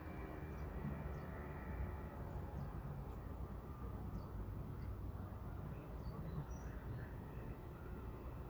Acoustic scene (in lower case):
residential area